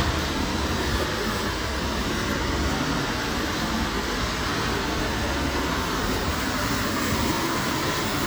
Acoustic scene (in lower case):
street